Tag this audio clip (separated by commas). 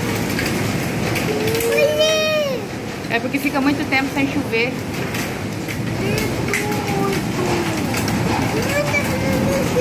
hail